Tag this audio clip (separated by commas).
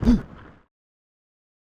Human voice